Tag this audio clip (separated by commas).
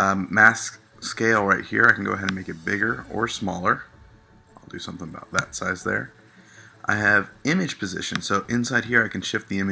Speech